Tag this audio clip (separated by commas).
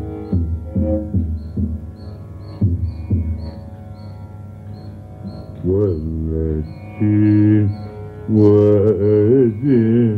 Music, Carnatic music